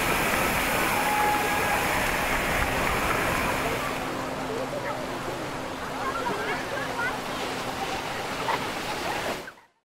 Sound of waterfall followed by a laughing sound